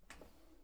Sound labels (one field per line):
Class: drawer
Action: opening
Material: wooden